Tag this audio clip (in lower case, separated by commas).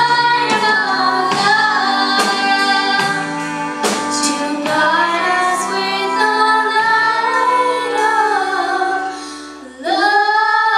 singing, music, inside a large room or hall